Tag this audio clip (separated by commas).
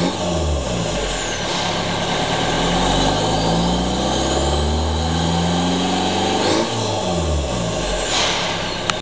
Vehicle, Accelerating